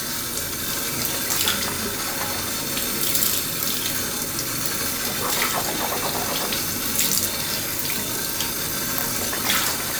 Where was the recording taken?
in a restroom